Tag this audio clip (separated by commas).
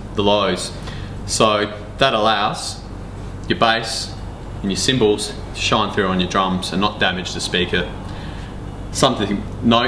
Speech